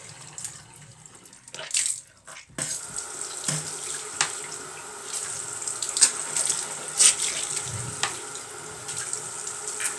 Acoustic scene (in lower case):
restroom